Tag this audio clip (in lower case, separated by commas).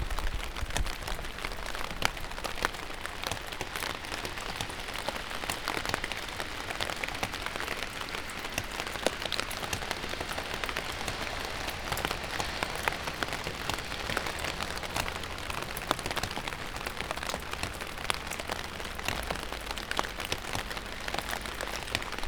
rain, water